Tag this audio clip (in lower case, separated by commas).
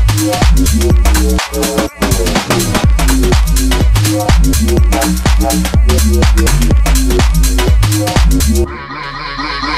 drum and bass, music